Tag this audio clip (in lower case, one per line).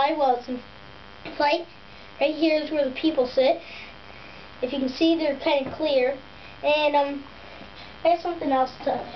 speech